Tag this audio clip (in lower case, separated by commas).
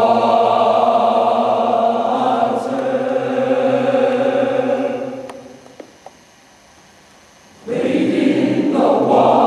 singing choir, singing, choir